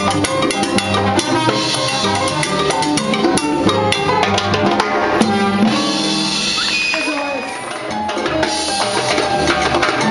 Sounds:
playing timbales

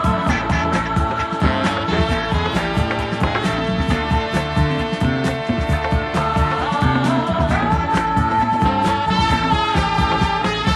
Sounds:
disco
music

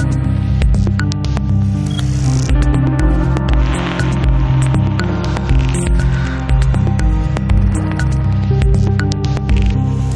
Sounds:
music

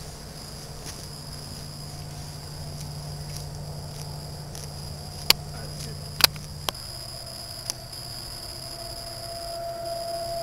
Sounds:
speech

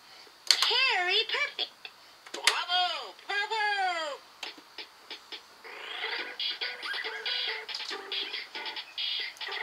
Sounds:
speech
video game music
music

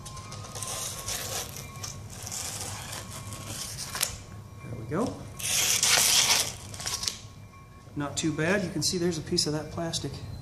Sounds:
speech
crackle

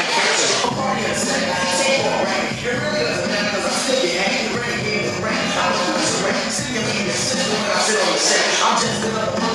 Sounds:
speech
music

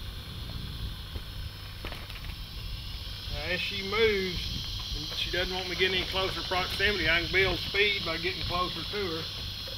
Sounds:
speech

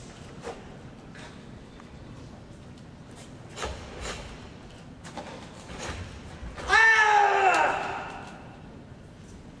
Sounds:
inside a large room or hall

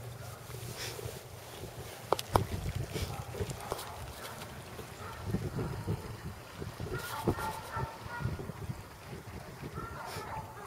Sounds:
speech

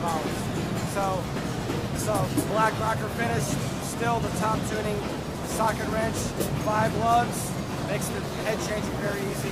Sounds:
speech

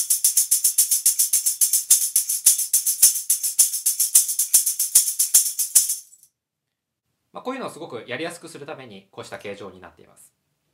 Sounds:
playing tambourine

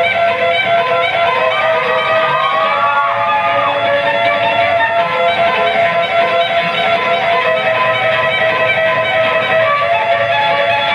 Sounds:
musical instrument
fiddle
music

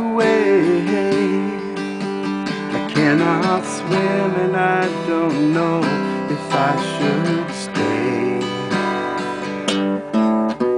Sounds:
music

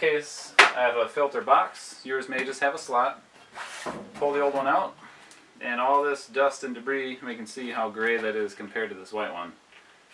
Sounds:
speech

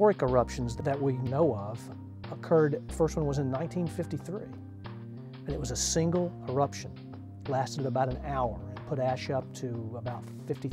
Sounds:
music
speech

